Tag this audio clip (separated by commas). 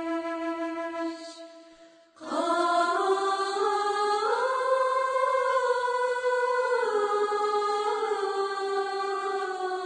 Music